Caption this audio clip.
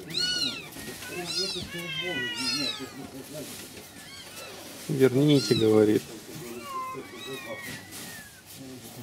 Multiple cats hissing and man talking with background conversations